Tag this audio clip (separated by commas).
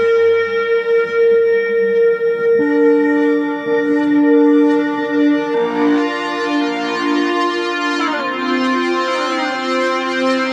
Plucked string instrument, Musical instrument, Music, Guitar, Electric guitar, inside a small room